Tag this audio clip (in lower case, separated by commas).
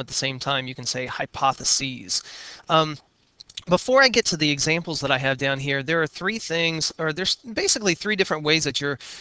speech